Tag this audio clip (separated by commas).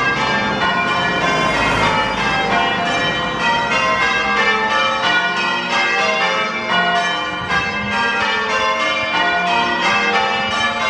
church bell ringing